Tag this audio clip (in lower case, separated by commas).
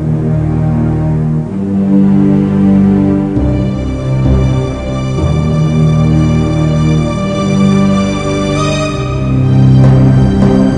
background music, music